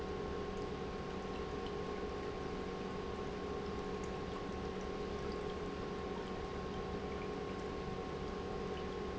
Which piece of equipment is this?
pump